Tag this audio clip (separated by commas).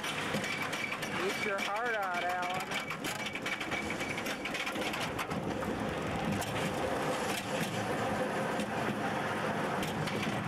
Speech